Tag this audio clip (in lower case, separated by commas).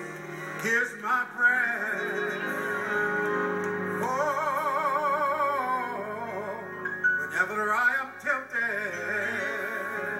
male singing, music